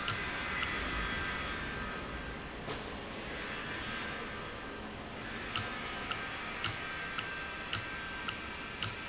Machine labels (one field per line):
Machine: valve